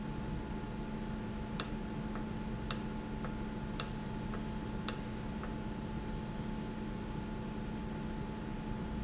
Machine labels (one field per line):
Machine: valve